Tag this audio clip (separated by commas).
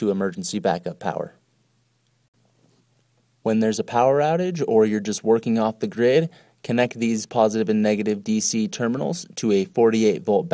Speech